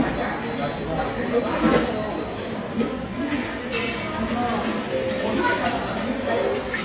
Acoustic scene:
restaurant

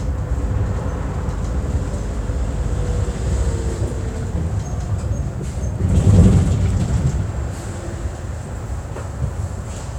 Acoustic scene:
bus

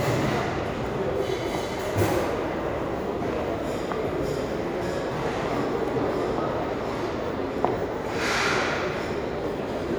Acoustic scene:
restaurant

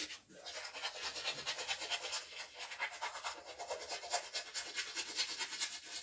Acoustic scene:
restroom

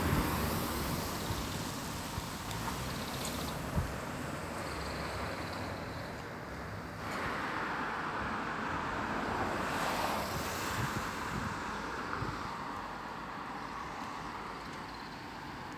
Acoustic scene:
street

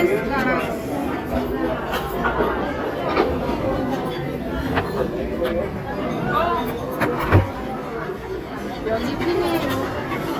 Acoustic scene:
crowded indoor space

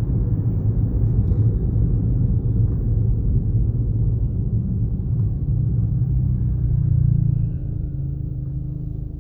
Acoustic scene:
car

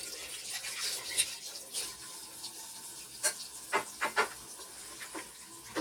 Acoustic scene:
kitchen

